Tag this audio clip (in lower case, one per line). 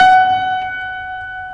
music
piano
keyboard (musical)
musical instrument